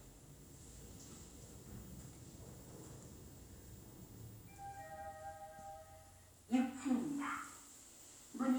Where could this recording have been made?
in an elevator